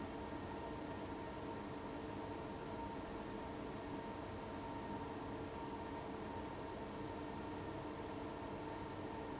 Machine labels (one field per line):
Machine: fan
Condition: abnormal